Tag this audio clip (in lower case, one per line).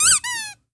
squeak